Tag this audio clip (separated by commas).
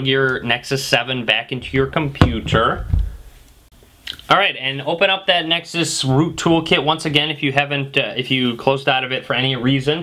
inside a small room, Speech